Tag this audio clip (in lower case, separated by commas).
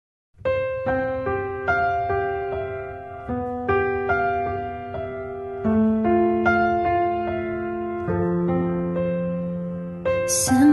electric piano, music